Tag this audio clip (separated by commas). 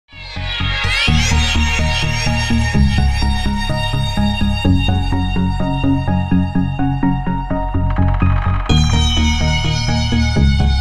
Soundtrack music, Techno, Electronica, Music, Electronic music